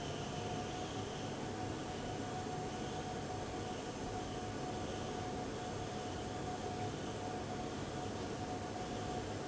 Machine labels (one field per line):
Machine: fan